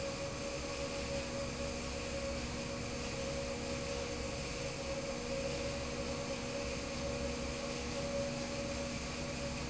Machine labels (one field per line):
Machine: fan